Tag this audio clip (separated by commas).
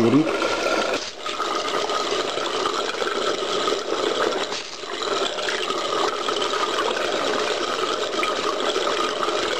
Speech